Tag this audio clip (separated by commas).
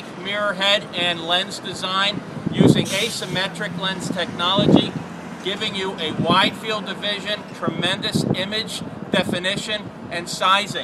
Vehicle, Speech